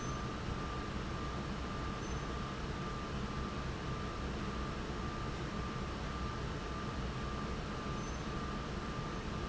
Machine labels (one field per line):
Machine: fan